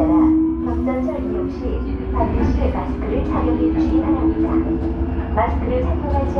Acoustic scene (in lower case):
subway train